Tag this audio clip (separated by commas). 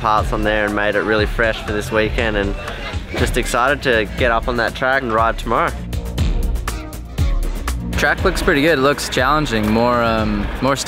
Speech, Music